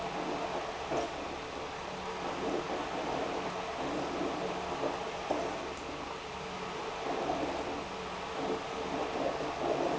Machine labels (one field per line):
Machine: pump